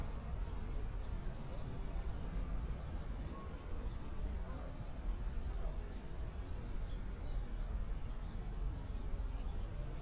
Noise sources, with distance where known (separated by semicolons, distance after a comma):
person or small group talking, far